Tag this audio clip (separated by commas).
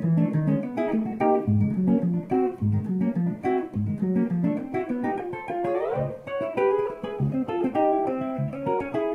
Plucked string instrument, Guitar, Music, Musical instrument